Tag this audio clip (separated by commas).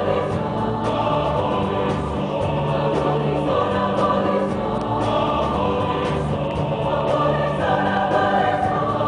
Music, Traditional music